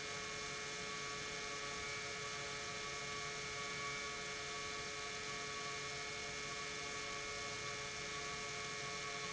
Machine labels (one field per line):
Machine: pump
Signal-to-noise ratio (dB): 6 dB